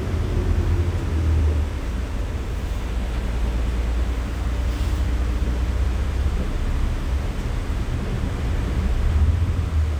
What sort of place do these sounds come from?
bus